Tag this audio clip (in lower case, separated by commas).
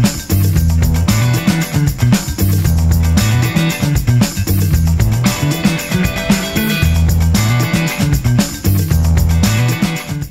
music